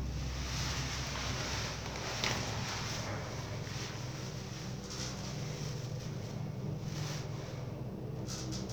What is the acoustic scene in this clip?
elevator